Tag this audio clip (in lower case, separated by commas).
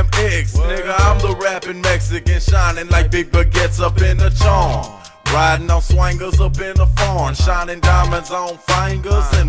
music